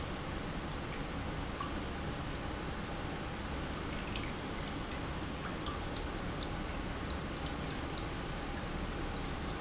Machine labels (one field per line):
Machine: pump